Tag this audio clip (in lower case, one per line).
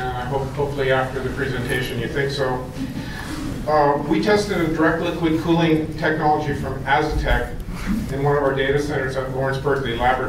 speech